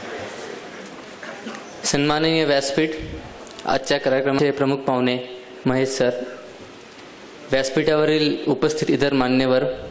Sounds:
man speaking, speech, monologue

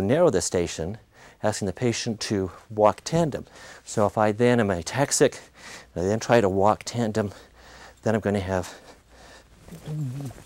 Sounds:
people shuffling

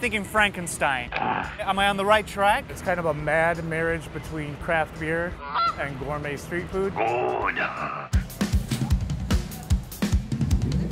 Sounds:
music, speech

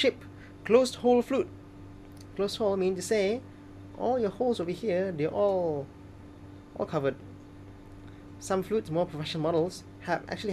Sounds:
speech

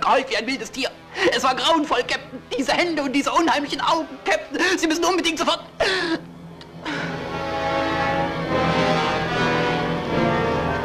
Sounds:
speech, music

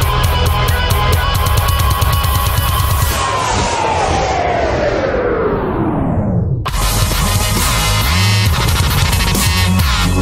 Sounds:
music

